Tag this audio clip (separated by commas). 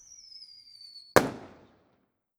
Fireworks, Explosion